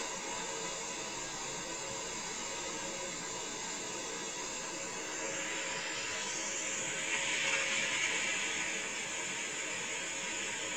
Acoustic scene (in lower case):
car